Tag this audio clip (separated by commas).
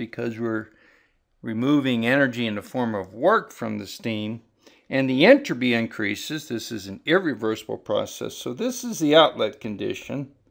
Speech